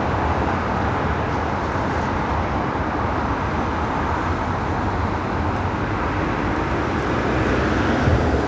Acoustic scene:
street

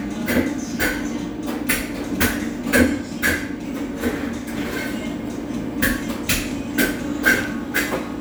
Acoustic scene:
cafe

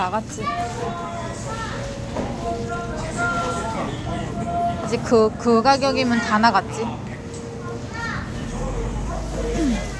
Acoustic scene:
crowded indoor space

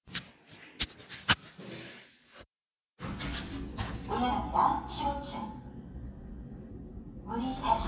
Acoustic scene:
elevator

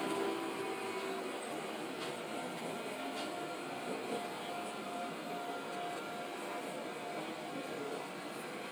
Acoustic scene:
subway train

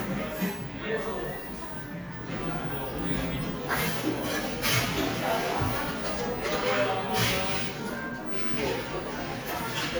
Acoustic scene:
cafe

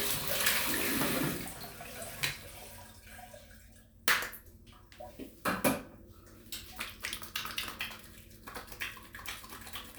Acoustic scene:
restroom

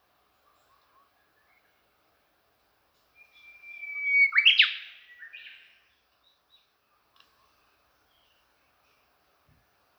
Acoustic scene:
park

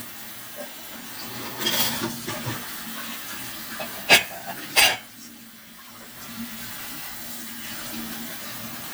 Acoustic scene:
kitchen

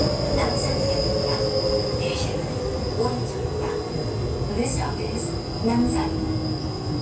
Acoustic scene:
subway train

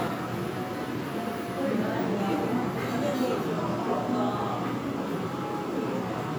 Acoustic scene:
crowded indoor space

